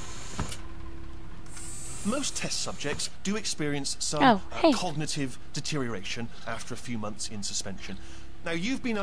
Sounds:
Speech

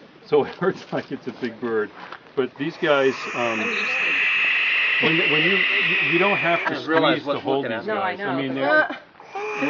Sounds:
Owl

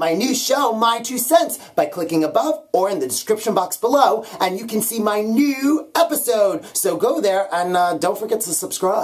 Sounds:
Speech

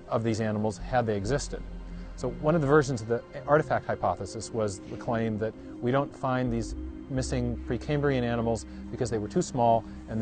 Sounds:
Music, Speech

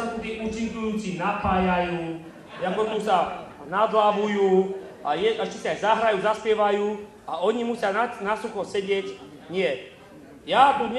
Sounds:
Speech, Male speech

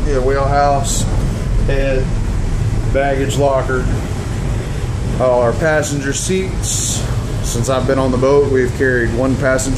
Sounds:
Speech

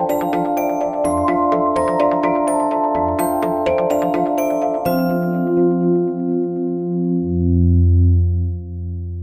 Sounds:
Glockenspiel, Music

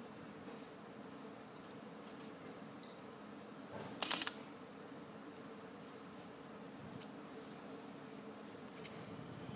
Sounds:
Camera

